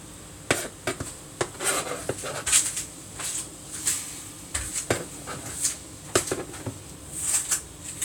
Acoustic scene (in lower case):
kitchen